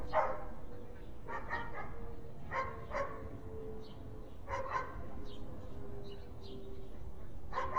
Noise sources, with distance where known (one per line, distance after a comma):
dog barking or whining